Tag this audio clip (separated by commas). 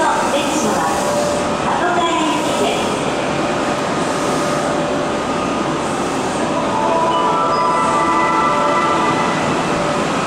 underground